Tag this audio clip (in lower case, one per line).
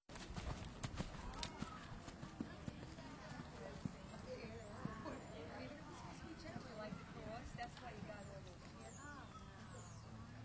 clip-clop
animal
speech